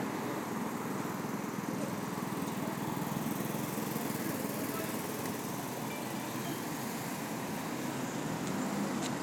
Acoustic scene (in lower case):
street